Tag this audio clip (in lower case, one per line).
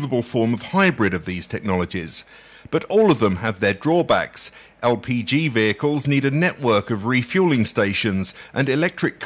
speech